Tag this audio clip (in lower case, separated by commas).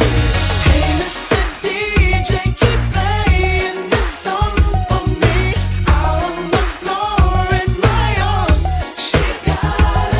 exciting music, singing, music